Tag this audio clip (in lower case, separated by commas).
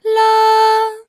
singing, human voice, female singing